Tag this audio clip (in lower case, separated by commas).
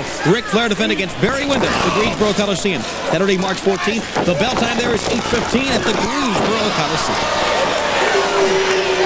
speech, chop